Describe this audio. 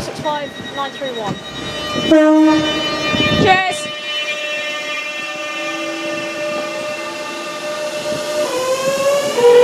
A phone ringing, a horn blaring, a woman speaking